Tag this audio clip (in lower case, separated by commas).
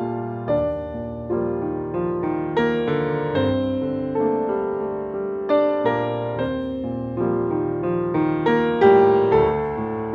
music